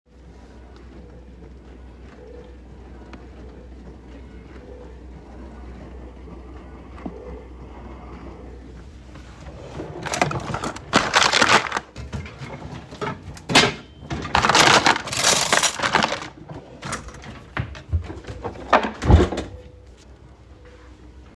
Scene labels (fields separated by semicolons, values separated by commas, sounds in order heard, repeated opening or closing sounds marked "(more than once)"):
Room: kitchen; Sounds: wardrobe or drawer, cutlery and dishes